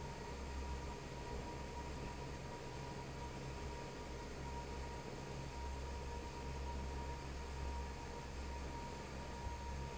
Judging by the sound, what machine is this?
fan